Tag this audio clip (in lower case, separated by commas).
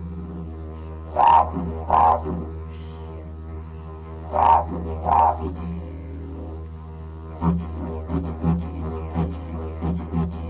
didgeridoo, music